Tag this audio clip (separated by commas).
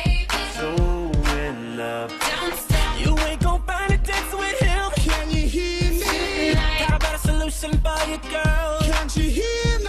Music